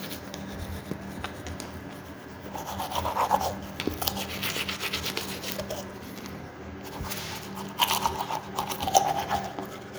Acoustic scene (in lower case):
restroom